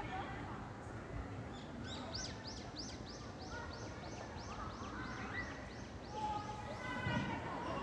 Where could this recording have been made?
in a park